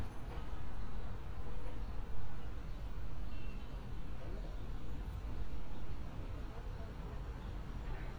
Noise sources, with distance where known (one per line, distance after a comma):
unidentified human voice, far